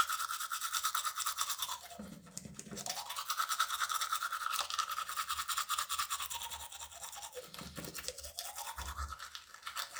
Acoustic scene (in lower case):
restroom